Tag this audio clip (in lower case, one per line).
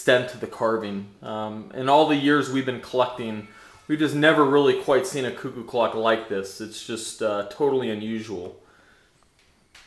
speech